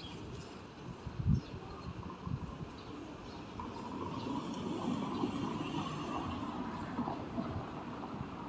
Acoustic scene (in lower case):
residential area